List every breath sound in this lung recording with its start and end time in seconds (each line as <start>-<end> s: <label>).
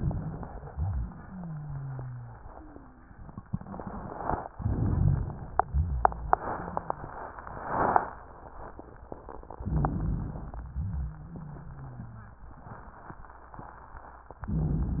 0.63-2.37 s: wheeze
2.45-3.13 s: wheeze
4.52-5.41 s: inhalation
4.52-5.41 s: rhonchi
5.66-7.34 s: wheeze
9.66-10.55 s: inhalation
9.66-10.55 s: rhonchi
10.74-12.43 s: wheeze